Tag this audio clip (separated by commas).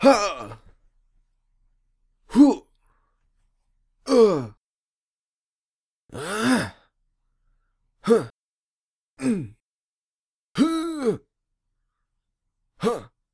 Human voice